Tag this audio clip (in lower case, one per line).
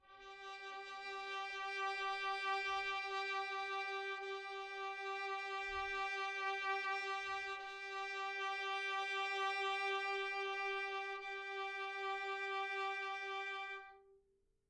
music
bowed string instrument
musical instrument